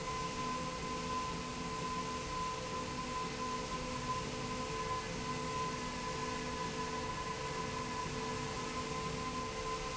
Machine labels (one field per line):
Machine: slide rail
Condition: normal